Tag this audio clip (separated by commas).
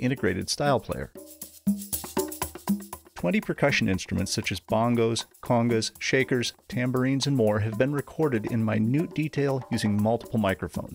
Speech, Wood block, Percussion, Music